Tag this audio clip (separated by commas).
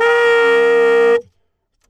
Musical instrument, woodwind instrument, Music